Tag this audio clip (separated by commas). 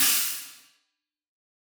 Percussion, Hi-hat, Cymbal, Music, Musical instrument